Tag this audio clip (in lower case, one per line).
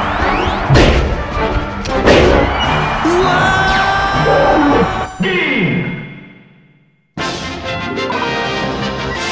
smash
music